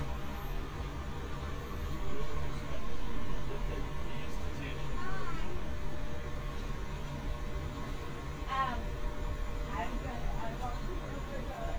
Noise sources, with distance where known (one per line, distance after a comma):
medium-sounding engine, far
person or small group talking, near